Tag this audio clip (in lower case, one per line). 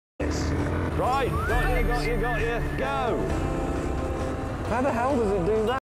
music
speech